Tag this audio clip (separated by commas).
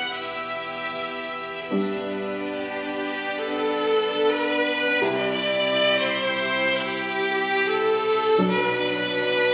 Violin, Music, Musical instrument